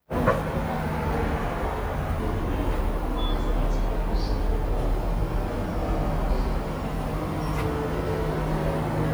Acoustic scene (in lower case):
subway station